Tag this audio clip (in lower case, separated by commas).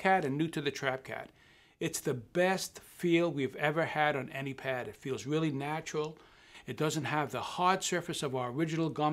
speech